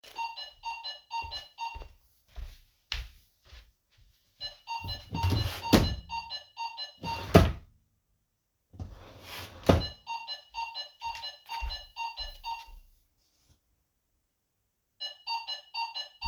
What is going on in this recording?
A bell ringing sound occurs first. I then walked to a wardrobe or drawer and opened and closed it. Footsteps are audible between the actions.